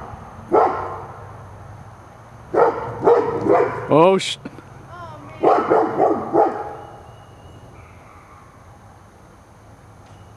A dog barking and male speaking